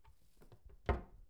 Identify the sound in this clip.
wooden cupboard closing